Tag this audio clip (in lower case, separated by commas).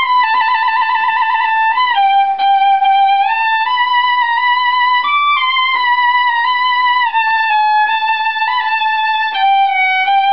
music, violin, musical instrument